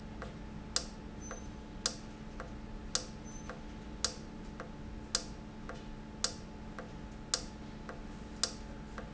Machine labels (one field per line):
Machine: valve